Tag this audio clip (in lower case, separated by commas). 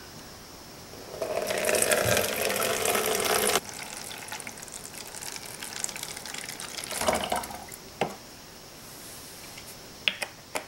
water tap, water, inside a small room